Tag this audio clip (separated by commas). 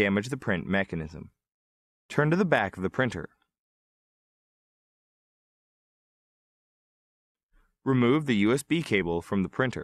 Speech